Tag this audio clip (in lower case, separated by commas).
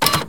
printer, mechanisms